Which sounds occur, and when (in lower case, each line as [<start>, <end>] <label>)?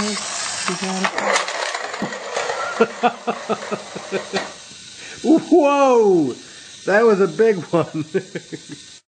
[0.00, 0.16] woman speaking
[0.00, 7.79] conversation
[0.00, 8.94] mechanisms
[0.35, 0.42] tick
[0.48, 1.02] woman speaking
[0.57, 2.02] generic impact sounds
[0.58, 0.62] tick
[0.74, 0.78] tick
[1.09, 1.13] tick
[2.27, 2.69] generic impact sounds
[2.71, 4.43] laughter
[4.30, 4.34] tick
[5.16, 6.39] man speaking
[6.82, 7.78] man speaking
[7.84, 8.77] laughter